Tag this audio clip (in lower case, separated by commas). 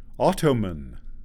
human voice, man speaking, speech